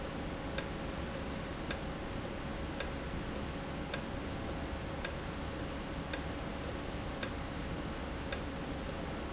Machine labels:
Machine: valve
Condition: normal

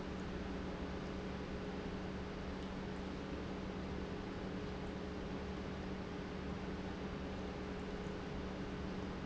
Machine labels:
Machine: pump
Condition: normal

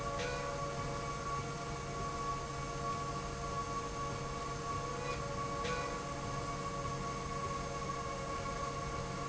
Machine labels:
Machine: slide rail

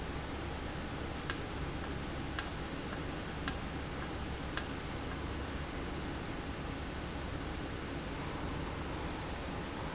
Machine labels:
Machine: valve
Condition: normal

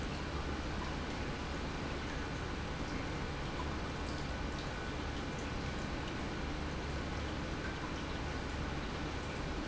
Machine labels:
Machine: pump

